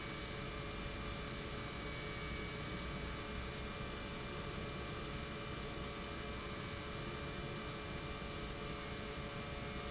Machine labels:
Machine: pump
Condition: normal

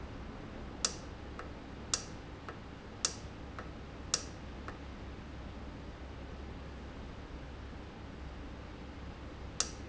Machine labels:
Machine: valve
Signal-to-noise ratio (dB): 0 dB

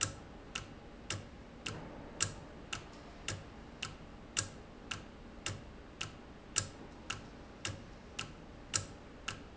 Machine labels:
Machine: valve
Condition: normal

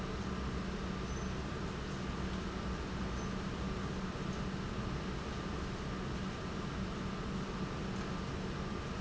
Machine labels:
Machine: pump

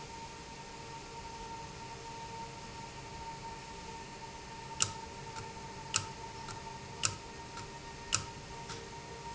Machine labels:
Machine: valve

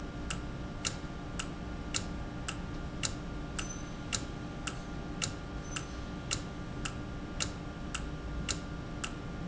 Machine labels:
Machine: valve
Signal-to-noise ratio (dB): -6 dB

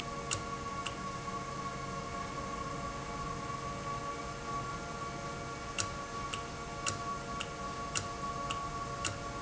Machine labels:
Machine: valve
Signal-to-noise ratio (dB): -6 dB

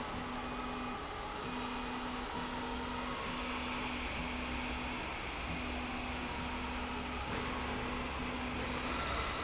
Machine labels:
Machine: slide rail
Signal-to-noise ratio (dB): -6 dB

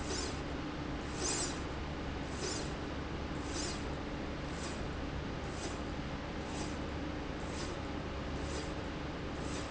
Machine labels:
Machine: slide rail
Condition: normal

